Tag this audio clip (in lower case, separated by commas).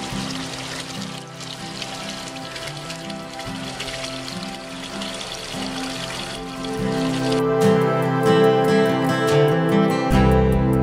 stream, music